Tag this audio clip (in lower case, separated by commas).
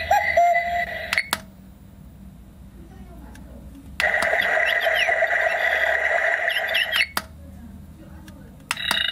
alarm, alarm clock, speech